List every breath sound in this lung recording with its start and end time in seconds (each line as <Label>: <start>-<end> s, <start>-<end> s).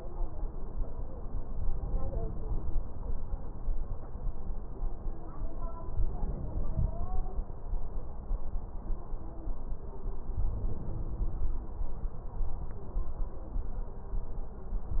Inhalation: 5.81-7.31 s, 10.34-11.62 s